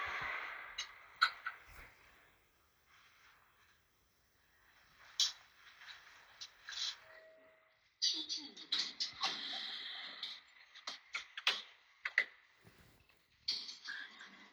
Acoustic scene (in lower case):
elevator